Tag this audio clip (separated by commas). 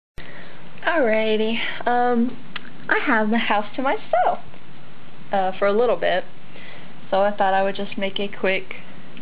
Speech